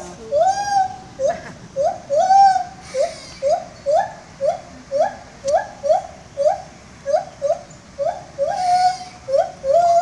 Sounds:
gibbon howling

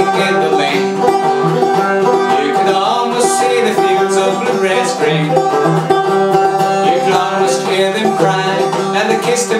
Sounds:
music, male singing

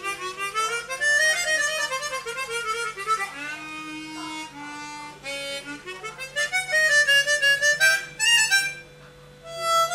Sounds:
music, harmonica

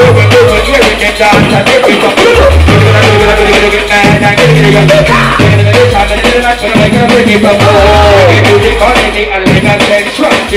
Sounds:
music, hip hop music, singing

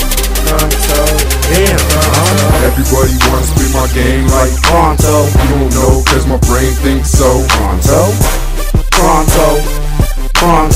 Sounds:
exciting music, music

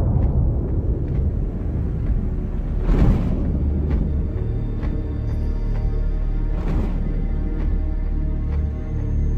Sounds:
music, inside a small room

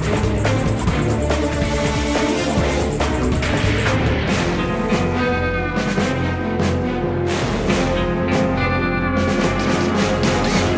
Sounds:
music

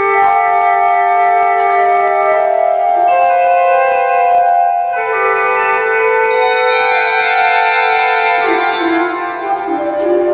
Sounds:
musical instrument, music, keyboard (musical), inside a large room or hall, piano, organ

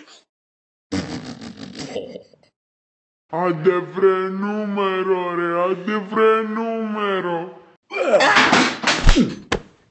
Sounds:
speech

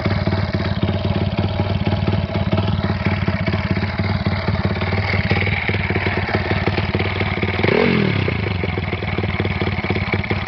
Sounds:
medium engine (mid frequency), vehicle, accelerating, engine, idling

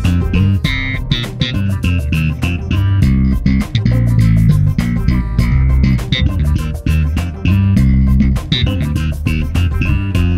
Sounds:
music, guitar, plucked string instrument, musical instrument, bass guitar, strum

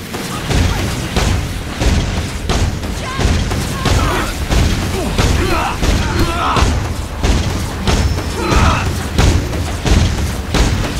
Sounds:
boom, music, speech

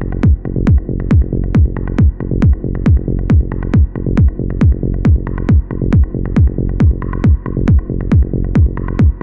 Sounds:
techno, electronic music, music

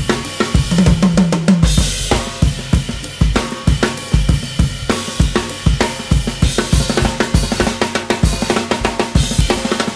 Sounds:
bass drum, drum kit, drum roll, playing drum kit, drum, rimshot, snare drum, percussion

